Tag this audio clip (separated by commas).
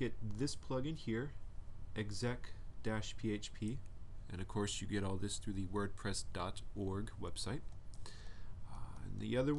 Speech